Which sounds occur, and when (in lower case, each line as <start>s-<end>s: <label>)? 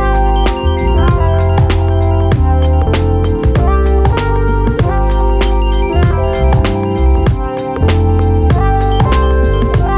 0.0s-9.9s: music